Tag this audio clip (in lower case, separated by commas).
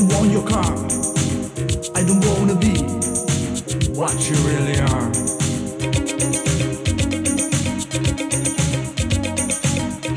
funk, music